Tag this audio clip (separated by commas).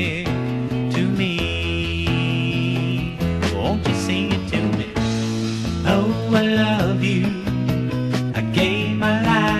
Music, Rhythm and blues, Gospel music